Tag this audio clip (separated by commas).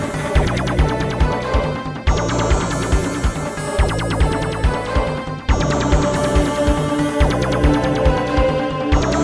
Music